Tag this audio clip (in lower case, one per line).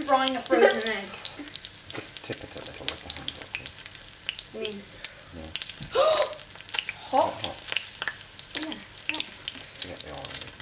speech
frying (food)